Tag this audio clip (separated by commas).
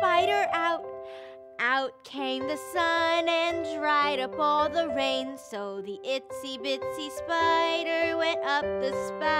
child singing